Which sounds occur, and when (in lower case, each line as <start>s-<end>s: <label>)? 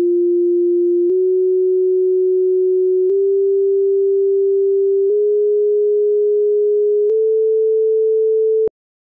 0.0s-8.7s: chirp tone
8.6s-8.7s: tick